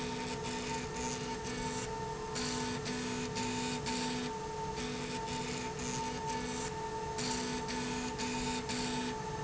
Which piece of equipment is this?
slide rail